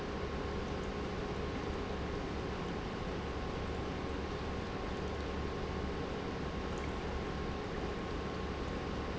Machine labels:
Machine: pump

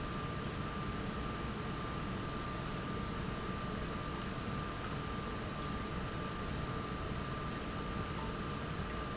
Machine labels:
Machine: pump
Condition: normal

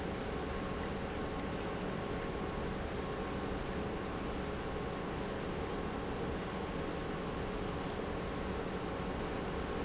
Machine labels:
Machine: pump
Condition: normal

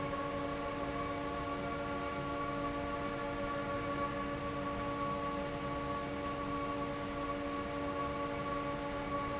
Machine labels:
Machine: fan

